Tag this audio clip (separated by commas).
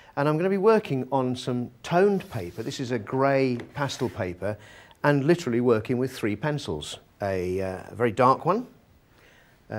Speech